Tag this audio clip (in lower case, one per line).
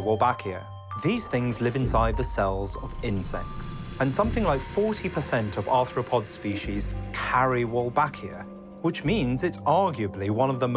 mosquito buzzing